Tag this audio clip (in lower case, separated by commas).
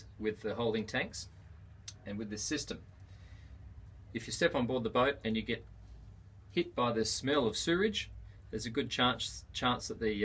speech